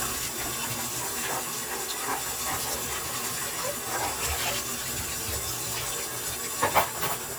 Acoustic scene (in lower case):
kitchen